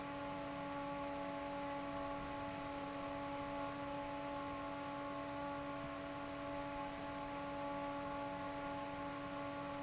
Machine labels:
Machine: fan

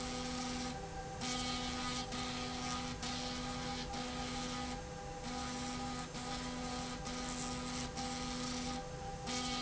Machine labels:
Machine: slide rail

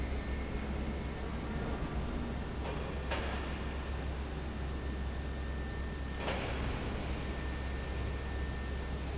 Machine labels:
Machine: fan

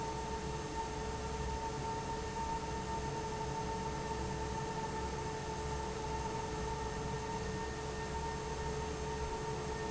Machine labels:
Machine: fan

